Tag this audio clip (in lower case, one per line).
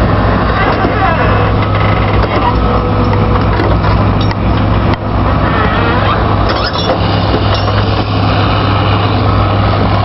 speech